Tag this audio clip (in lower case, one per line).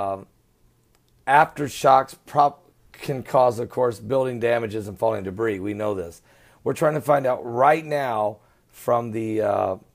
speech